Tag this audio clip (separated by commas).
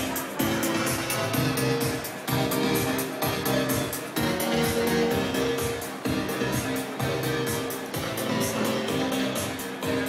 Speech, Music